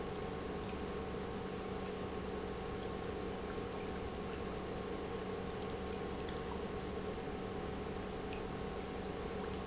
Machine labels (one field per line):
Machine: pump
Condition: normal